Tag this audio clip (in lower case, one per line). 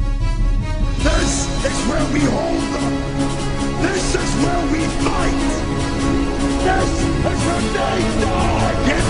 speech
music